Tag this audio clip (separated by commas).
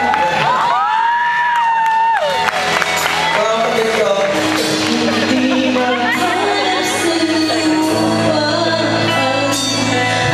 Speech, Female singing, Male singing, Music